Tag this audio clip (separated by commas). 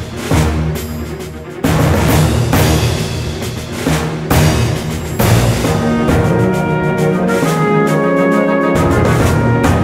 Music